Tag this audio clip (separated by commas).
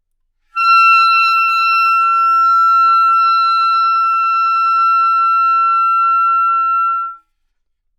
Musical instrument, Music, woodwind instrument